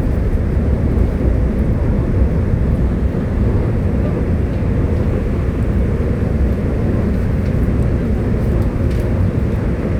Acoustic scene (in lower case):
subway train